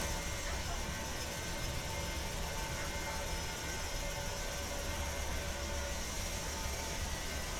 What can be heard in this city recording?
engine of unclear size